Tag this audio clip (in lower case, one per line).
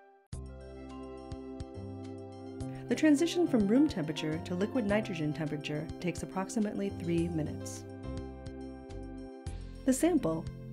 music
speech